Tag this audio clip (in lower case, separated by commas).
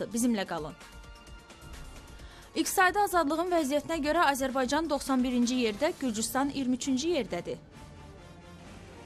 music, speech